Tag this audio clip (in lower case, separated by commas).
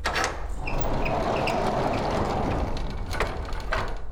door, home sounds